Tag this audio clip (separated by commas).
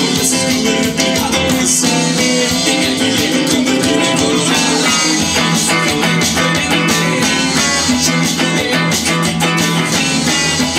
Guitar, Plucked string instrument, Music, Musical instrument